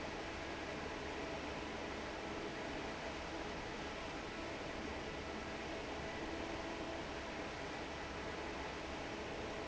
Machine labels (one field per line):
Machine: fan